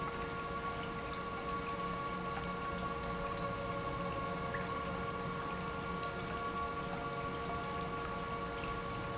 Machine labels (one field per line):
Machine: pump